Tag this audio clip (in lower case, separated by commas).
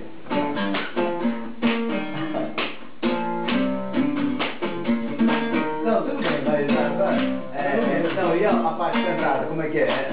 speech, music